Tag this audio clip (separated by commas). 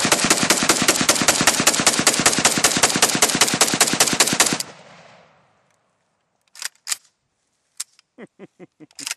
machine gun shooting